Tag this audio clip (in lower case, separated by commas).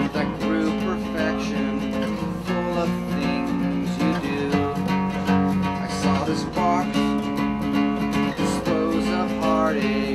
male singing, music